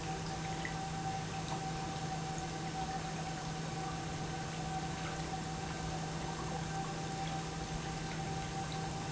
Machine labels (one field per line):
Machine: pump